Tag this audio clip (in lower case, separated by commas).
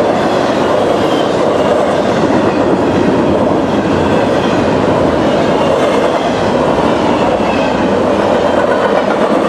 train horning